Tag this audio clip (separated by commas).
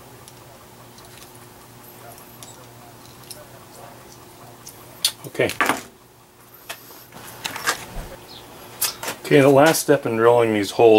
Speech, Tools